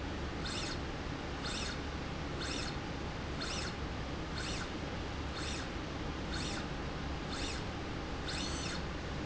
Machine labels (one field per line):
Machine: slide rail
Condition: normal